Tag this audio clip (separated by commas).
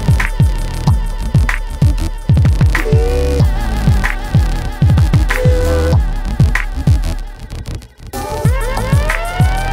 Music